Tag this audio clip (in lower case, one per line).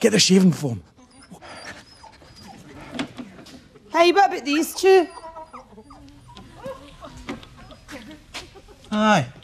speech
inside a large room or hall